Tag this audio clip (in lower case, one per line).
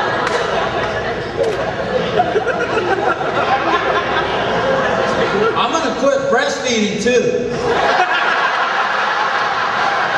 speech
inside a large room or hall